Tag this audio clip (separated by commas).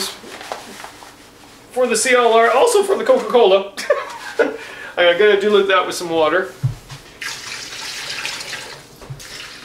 Water, Sink (filling or washing)